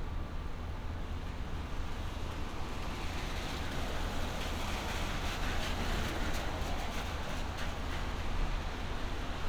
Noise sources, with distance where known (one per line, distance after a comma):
medium-sounding engine, near